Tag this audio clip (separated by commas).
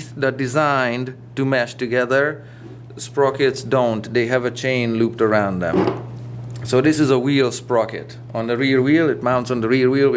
inside a small room, Speech